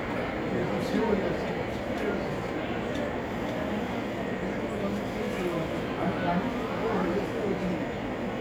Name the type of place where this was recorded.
cafe